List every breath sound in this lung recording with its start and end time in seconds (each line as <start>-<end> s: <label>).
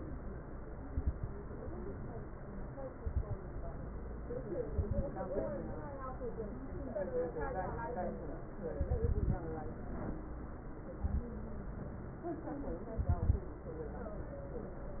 0.81-1.25 s: inhalation
0.81-1.25 s: crackles
2.96-3.40 s: inhalation
2.96-3.40 s: crackles
4.67-5.11 s: inhalation
4.67-5.11 s: crackles
8.76-9.48 s: inhalation
8.76-9.48 s: crackles
10.98-11.32 s: inhalation
10.98-11.32 s: crackles
12.96-13.51 s: inhalation
12.96-13.51 s: crackles